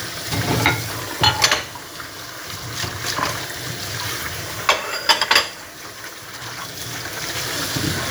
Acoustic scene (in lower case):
kitchen